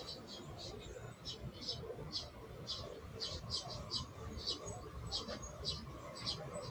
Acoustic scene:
park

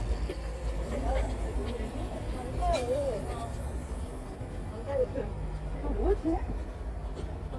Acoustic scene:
park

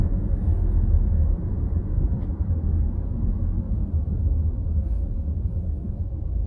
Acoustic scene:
car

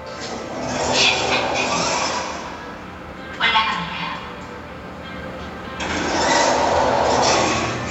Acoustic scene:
elevator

